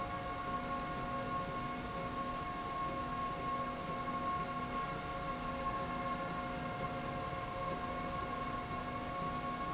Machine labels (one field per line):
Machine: slide rail